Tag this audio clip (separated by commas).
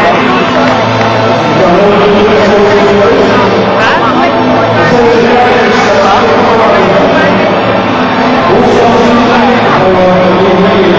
Music, Speech